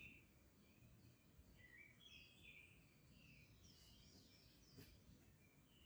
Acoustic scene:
park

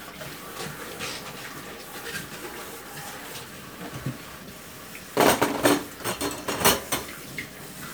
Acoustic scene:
kitchen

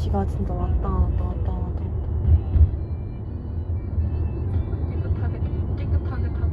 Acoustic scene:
car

